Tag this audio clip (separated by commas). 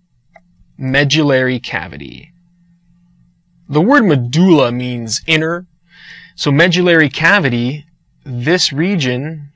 inside a small room, Speech